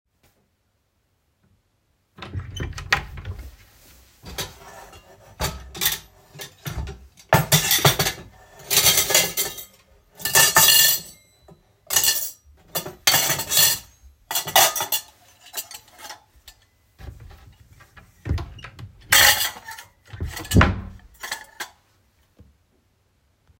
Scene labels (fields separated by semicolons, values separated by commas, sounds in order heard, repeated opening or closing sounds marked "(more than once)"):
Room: hallway; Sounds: wardrobe or drawer (more than once), cutlery and dishes